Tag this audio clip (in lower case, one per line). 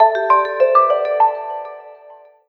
alarm
ringtone
telephone